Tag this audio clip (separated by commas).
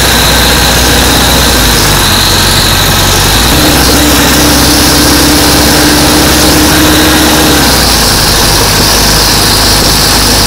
Vehicle